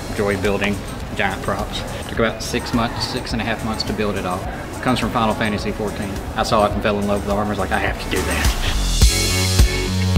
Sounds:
music, speech

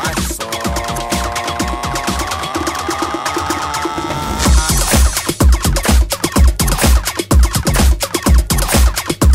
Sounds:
music, disco, house music

